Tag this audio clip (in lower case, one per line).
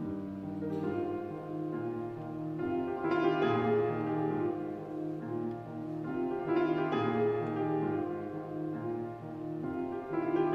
music